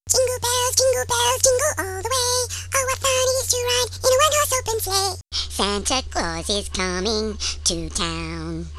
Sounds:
singing, human voice

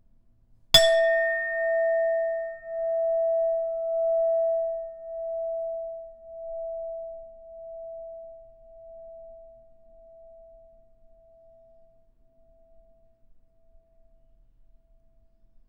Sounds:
chink, glass

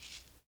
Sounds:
musical instrument, percussion, rattle (instrument), music

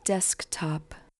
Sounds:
human voice, woman speaking, speech

